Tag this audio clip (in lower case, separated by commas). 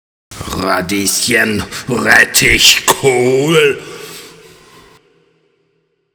speech, human voice